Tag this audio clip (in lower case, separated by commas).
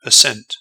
speech, human voice, man speaking